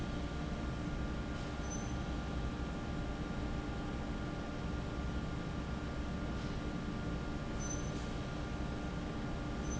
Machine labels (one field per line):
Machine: fan